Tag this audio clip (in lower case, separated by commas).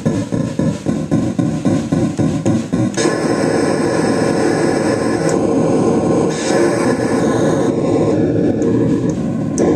synthesizer, electronic music, musical instrument, music